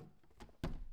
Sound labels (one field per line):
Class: cupboard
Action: opening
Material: wooden